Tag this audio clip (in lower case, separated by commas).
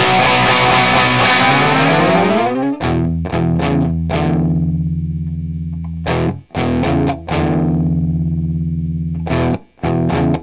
plucked string instrument, electric guitar, musical instrument, playing electric guitar, music, guitar